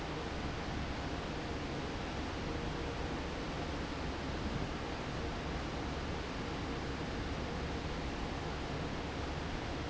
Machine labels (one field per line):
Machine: fan